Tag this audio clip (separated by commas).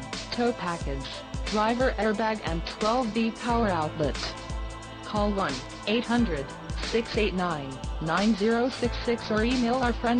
Music, Speech